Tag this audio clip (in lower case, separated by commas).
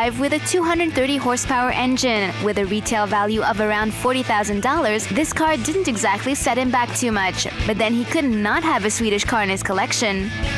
music, speech